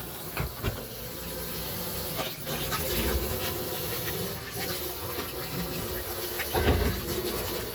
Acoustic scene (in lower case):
kitchen